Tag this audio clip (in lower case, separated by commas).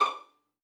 music, bowed string instrument, musical instrument